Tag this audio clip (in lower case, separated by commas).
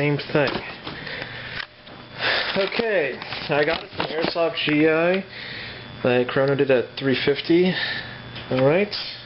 speech